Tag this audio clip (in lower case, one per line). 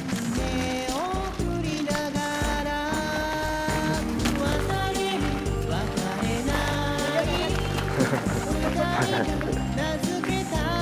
bird